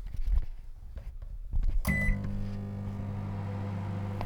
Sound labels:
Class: microwave oven